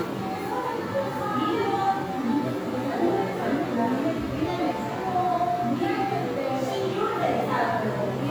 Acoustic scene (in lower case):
crowded indoor space